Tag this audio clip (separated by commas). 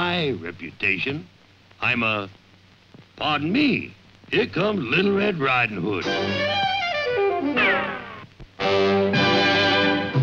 Music, Speech